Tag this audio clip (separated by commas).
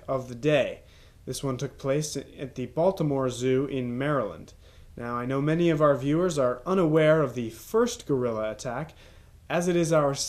Speech